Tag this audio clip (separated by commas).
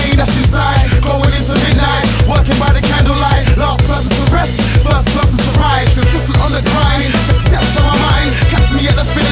Punk rock, Music